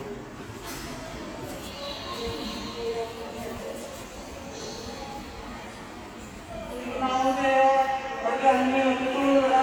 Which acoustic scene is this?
subway station